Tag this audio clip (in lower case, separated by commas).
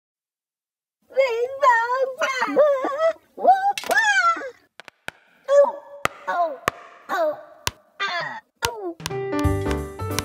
speech, music